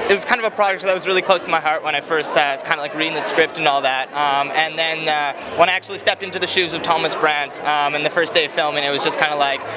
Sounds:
Speech

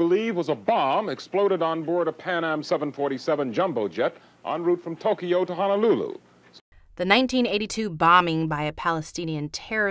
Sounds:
Speech

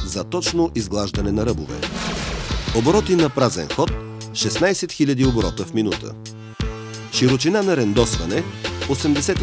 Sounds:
Music, Speech, Tools

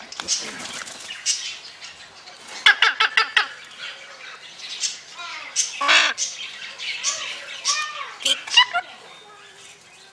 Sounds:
parrot talking

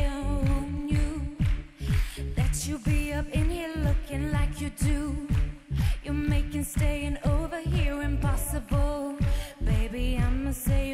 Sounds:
Music

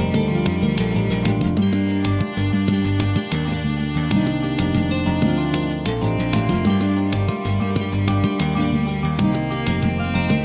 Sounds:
Music

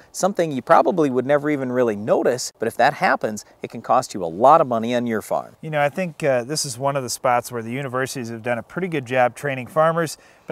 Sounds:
Speech

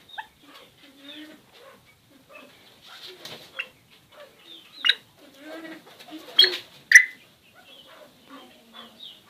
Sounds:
pheasant crowing

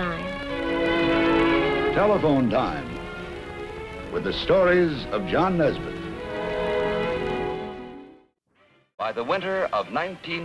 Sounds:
Music, Speech

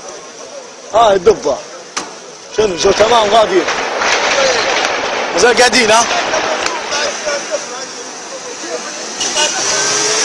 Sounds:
Speech

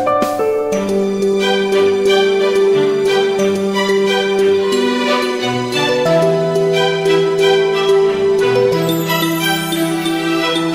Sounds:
Wedding music

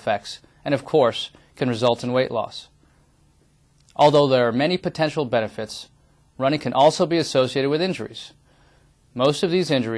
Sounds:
Speech, inside a small room

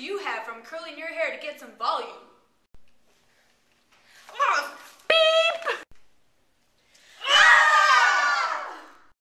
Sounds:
Speech

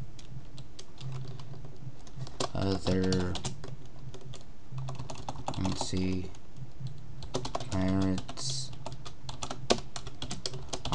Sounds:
Typing, Computer keyboard, Speech

